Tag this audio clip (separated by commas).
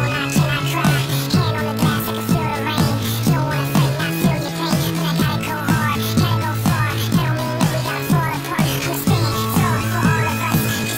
Music